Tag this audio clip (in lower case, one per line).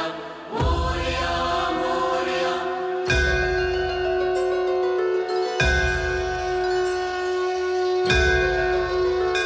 singing
music
sitar